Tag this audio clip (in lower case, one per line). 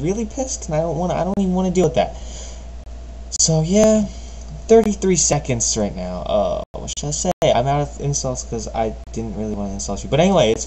speech